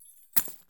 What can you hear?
object falling